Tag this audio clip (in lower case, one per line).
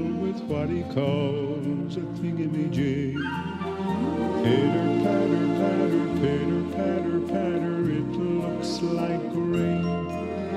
music
soul music